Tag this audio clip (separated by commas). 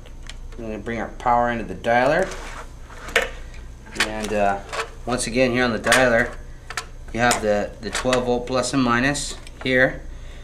Speech